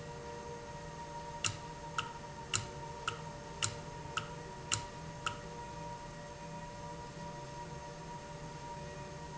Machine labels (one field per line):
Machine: valve